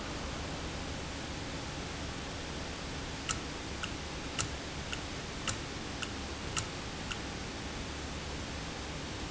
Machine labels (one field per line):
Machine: valve